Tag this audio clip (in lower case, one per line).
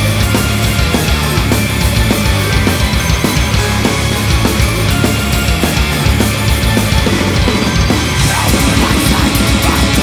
music